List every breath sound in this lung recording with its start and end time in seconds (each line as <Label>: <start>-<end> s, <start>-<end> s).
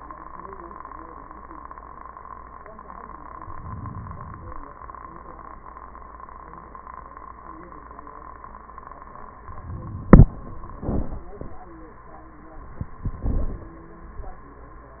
Inhalation: 3.36-4.64 s